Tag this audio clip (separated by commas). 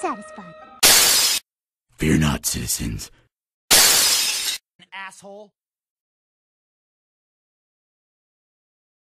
Speech